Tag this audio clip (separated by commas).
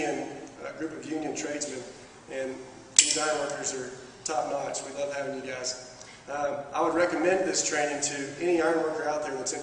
Speech